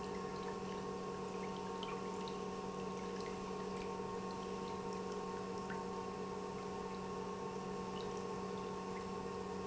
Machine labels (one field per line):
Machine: pump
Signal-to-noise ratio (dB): 6 dB